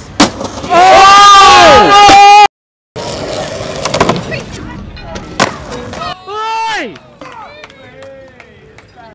A group of boys cheer and scraping is clacking is happening